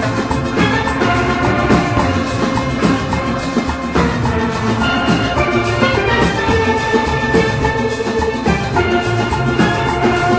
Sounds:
music, steelpan

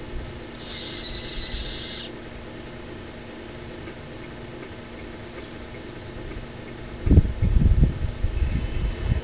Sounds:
vehicle, truck

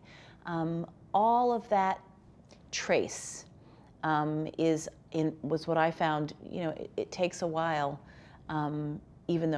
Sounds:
inside a small room, speech

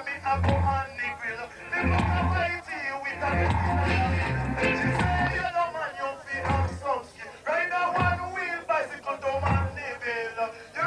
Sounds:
music

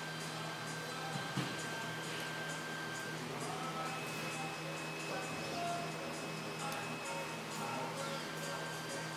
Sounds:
car, vehicle, music

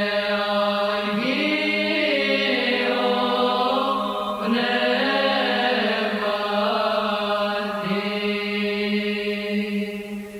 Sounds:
mantra

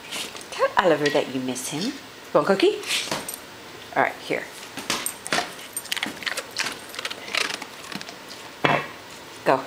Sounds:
speech, domestic animals

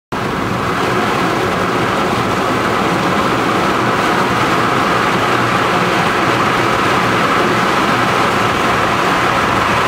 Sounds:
auto racing, car, vehicle, roadway noise

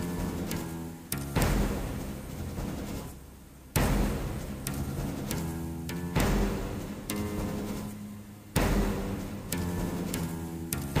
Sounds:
music

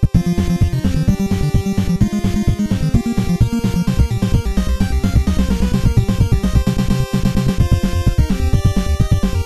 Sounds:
music

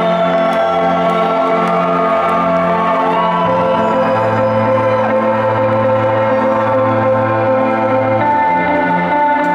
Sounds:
music

